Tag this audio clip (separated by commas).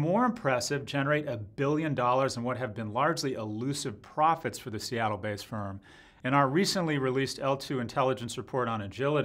Speech